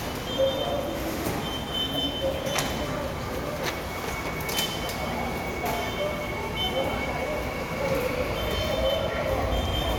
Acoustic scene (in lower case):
subway station